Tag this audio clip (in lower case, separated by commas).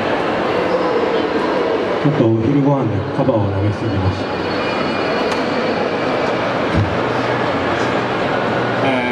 speech